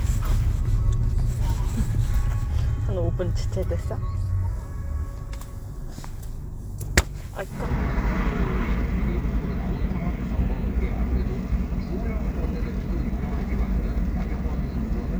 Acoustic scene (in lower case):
car